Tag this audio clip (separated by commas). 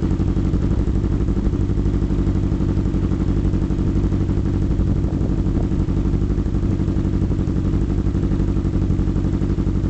Wind noise (microphone)